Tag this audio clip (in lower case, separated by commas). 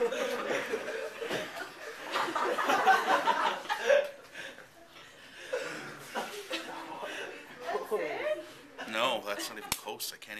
chortle, speech